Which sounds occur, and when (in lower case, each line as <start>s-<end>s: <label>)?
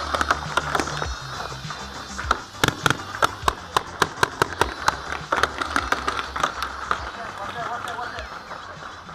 0.0s-9.1s: music
0.0s-9.1s: sound effect
0.1s-0.3s: gunfire
0.5s-1.0s: gunfire
1.3s-2.0s: gunfire
2.2s-2.4s: gunfire
2.6s-2.9s: gunfire
3.2s-3.5s: gunfire
3.7s-4.0s: gunfire
4.2s-4.4s: gunfire
4.6s-4.9s: gunfire
5.1s-5.4s: gunfire
5.6s-6.2s: gunfire
6.3s-6.6s: gunfire
6.8s-7.1s: gunfire
7.1s-8.3s: male speech
7.3s-8.1s: gunfire
8.1s-8.2s: tick
8.3s-9.1s: gunfire
8.5s-9.1s: bird call